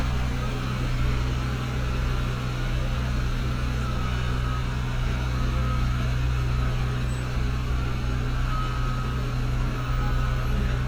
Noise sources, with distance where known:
large-sounding engine, near; reverse beeper

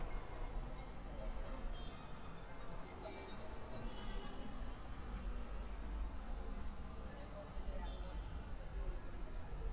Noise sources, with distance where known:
car horn, far; music from an unclear source; person or small group talking, far

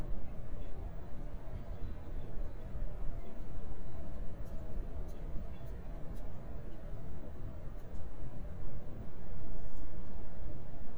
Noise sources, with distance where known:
background noise

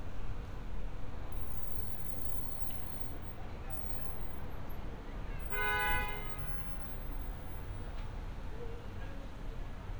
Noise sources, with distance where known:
car horn, near

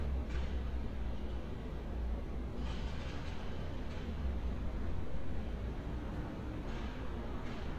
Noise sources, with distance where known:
engine of unclear size

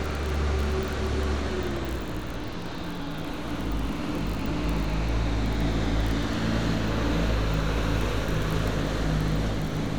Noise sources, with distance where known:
large-sounding engine, near

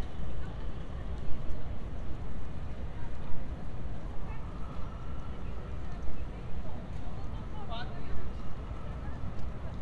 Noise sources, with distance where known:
unidentified alert signal; person or small group talking, far

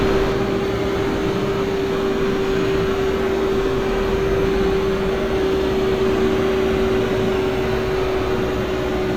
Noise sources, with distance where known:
engine of unclear size, near

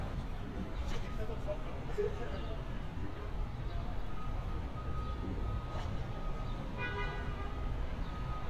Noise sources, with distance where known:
car horn, near

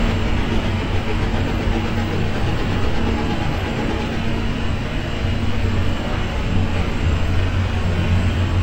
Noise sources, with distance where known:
hoe ram

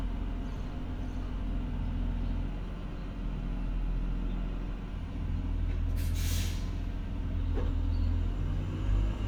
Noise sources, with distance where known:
large-sounding engine, near

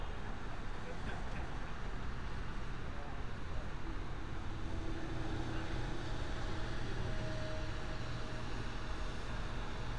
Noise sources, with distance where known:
engine of unclear size, far

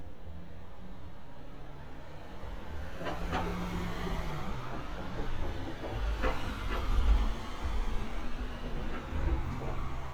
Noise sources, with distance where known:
engine of unclear size; non-machinery impact, near

